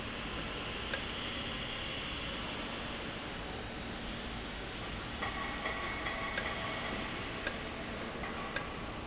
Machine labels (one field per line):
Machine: valve